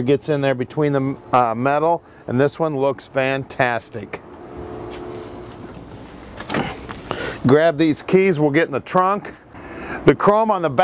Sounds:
outside, urban or man-made, car, speech

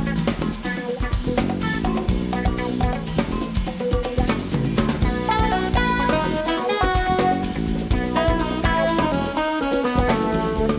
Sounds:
music

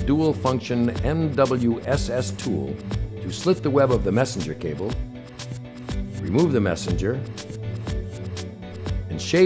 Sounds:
speech, music

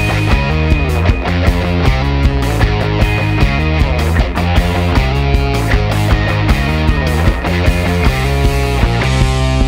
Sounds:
music

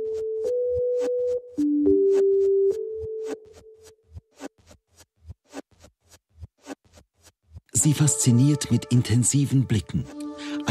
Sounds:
speech, music

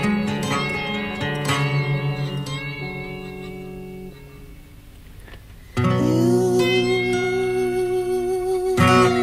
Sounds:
music

